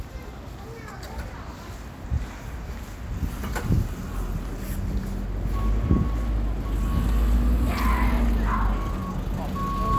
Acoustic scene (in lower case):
street